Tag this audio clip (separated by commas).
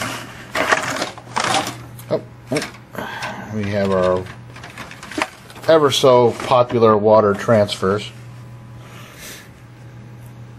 Speech, inside a small room